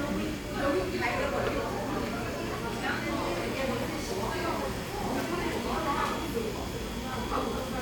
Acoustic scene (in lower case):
crowded indoor space